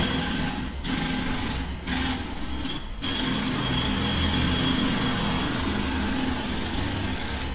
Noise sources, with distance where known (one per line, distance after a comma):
jackhammer, near